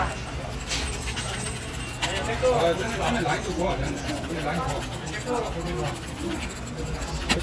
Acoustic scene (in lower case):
crowded indoor space